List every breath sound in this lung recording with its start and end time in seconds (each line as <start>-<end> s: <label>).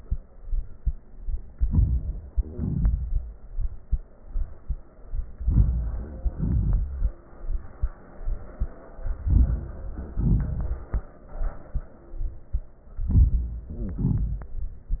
1.63-2.36 s: inhalation
2.38-3.84 s: exhalation
5.35-6.29 s: inhalation
6.28-7.40 s: exhalation
8.96-10.16 s: inhalation
10.17-11.24 s: exhalation
12.91-13.72 s: inhalation
13.64-14.05 s: wheeze
13.71-15.00 s: exhalation